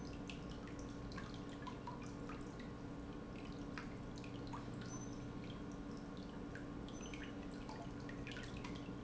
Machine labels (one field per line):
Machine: pump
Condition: normal